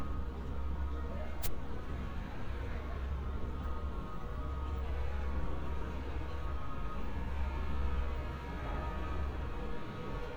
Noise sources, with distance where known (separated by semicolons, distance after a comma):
unidentified human voice